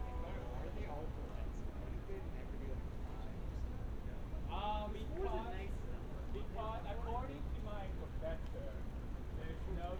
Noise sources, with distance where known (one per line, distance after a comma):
person or small group talking, near